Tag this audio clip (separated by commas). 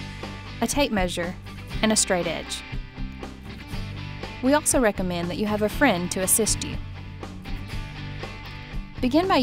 Speech, Music